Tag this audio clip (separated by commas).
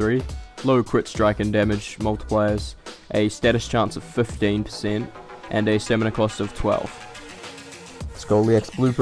Speech, Music